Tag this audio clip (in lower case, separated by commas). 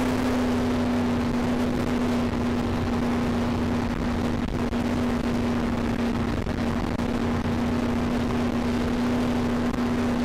vehicle